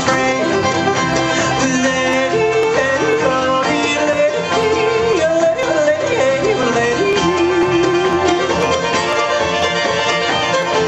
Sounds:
Music

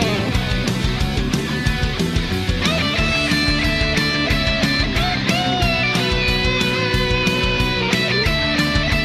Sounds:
Music

